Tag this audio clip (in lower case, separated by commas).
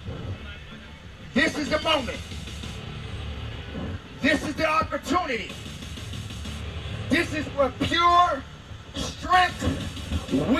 speech, narration, music, male speech